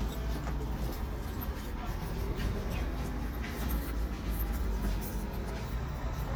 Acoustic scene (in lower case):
residential area